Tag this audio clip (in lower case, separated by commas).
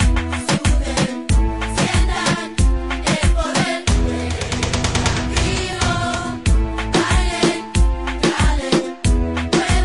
sound effect, music